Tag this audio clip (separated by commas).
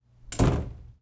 Domestic sounds, Slam, Door